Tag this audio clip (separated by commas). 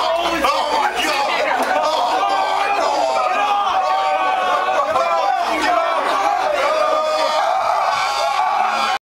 Speech